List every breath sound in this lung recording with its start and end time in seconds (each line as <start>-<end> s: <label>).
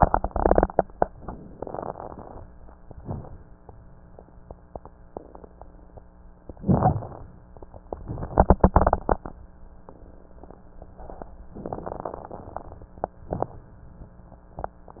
0.00-1.15 s: inhalation
0.00-1.15 s: crackles
1.17-2.81 s: exhalation
1.17-2.81 s: crackles
2.86-3.79 s: inhalation
2.86-3.79 s: crackles
6.35-7.86 s: inhalation
6.35-7.86 s: crackles
7.86-9.93 s: exhalation
7.86-9.93 s: crackles
10.79-11.45 s: inhalation
10.79-11.45 s: crackles
11.46-14.55 s: exhalation
11.46-14.55 s: crackles